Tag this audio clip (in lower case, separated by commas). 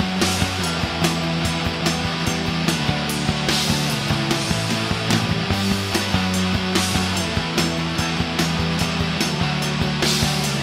progressive rock, rock music, music